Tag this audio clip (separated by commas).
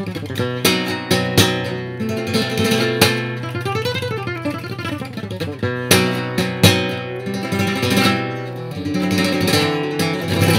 Guitar, Strum, Plucked string instrument, Music, Acoustic guitar, Musical instrument